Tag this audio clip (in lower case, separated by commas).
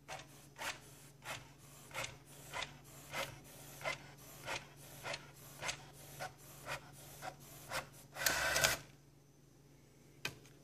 printer